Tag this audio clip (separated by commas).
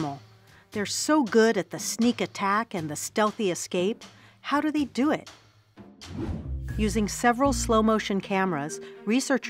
mosquito buzzing